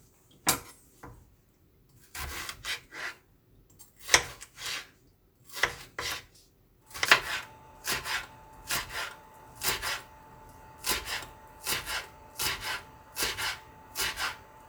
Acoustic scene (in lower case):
kitchen